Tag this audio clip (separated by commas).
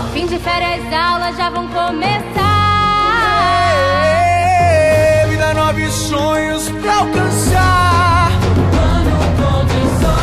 Music